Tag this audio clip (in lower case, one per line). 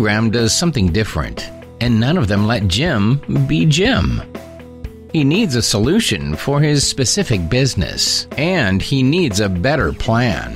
music
speech